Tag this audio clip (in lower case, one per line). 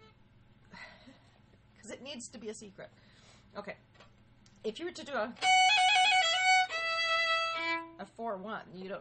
violin
music
musical instrument
bowed string instrument
speech